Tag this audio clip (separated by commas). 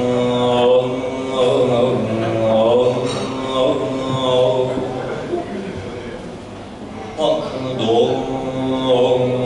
Chant